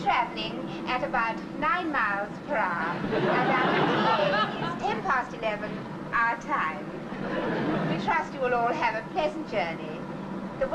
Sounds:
vehicle
speech

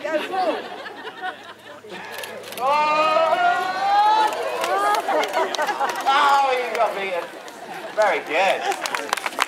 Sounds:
speech
chatter

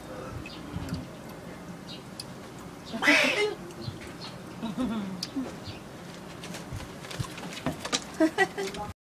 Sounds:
speech

